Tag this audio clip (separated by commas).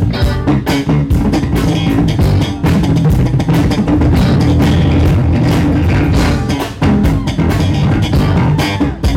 Bass drum, Music, Jazz, Guitar, Bass guitar, Plucked string instrument, Percussion, Drum, Drum kit, Musical instrument